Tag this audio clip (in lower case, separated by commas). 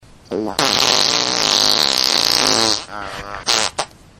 fart